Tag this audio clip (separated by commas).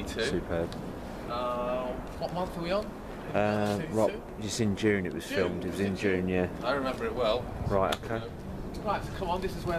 Speech